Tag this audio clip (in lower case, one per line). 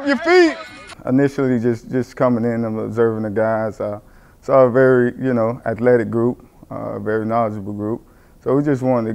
speech